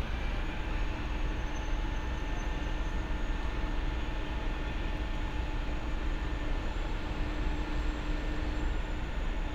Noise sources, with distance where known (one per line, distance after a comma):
engine of unclear size, far